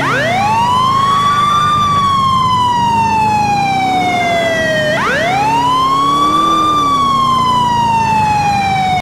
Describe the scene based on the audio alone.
Emergency vehicle siren, engine running